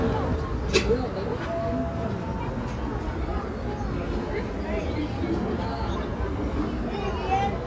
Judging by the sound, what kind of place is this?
residential area